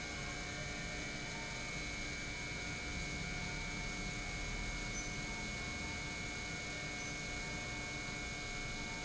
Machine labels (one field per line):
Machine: pump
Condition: normal